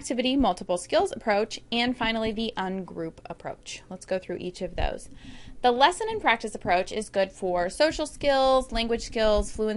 Woman speaking and narrating